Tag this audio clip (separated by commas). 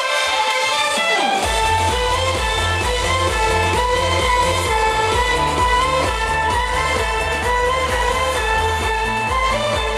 Musical instrument, Violin, Music